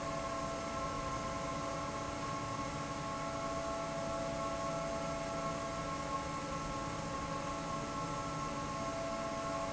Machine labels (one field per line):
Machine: fan